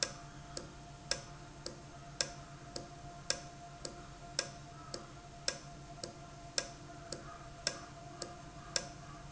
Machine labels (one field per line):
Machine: valve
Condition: normal